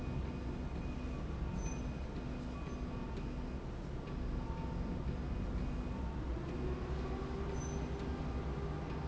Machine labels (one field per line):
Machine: slide rail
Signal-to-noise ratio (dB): -6 dB